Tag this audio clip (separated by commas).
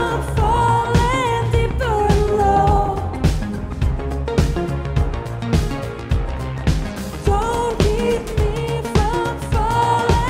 Music